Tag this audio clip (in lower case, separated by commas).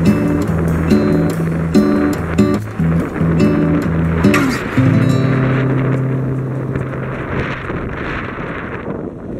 outside, urban or man-made, music